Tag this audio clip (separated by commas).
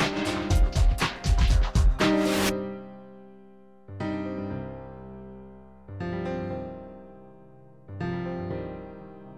Music